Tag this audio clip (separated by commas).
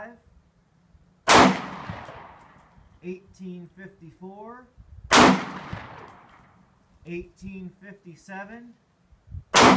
Speech, Machine gun